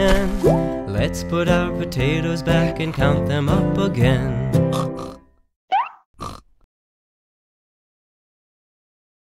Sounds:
Singing, Music for children, Music

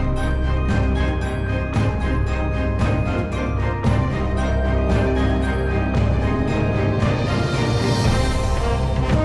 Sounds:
Music

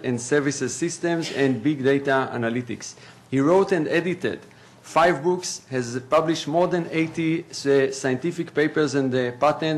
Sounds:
Speech

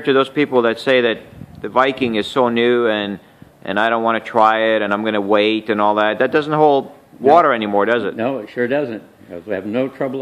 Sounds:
Speech

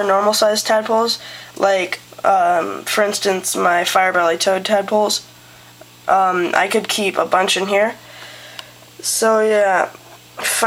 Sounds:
Speech

